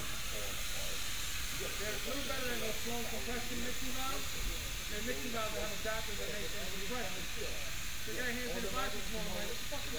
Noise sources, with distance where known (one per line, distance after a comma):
person or small group talking, near